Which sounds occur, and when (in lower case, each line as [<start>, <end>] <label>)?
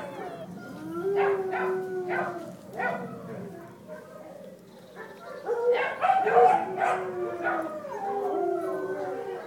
[0.00, 3.61] dog
[0.01, 9.45] background noise
[5.42, 7.04] bark
[7.17, 9.45] dog
[7.30, 7.74] bark